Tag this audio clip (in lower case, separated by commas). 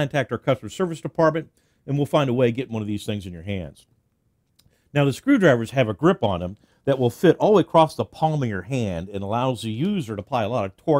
speech